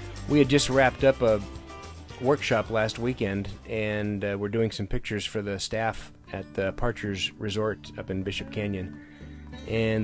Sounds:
Speech, Music

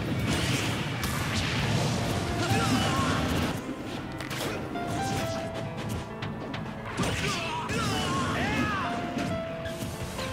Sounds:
Music, Smash

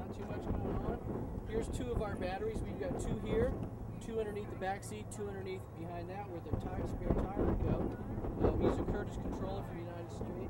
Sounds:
Speech

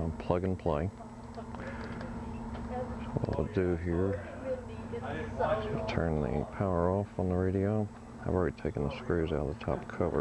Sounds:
Speech

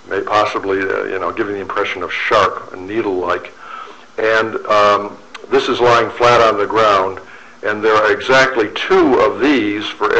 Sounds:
Speech

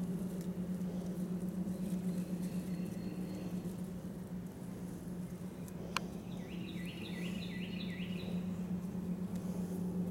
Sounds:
Animal

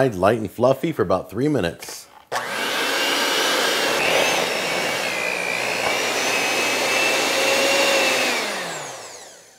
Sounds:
Blender

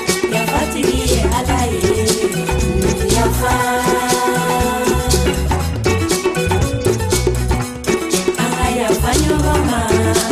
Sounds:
Music

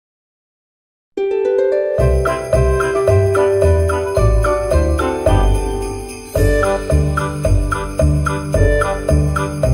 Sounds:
Jingle, Jingle bell

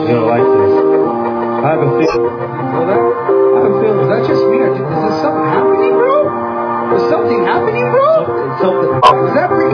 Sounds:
Speech, Music, Animal

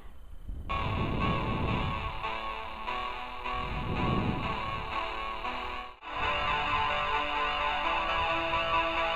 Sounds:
Music

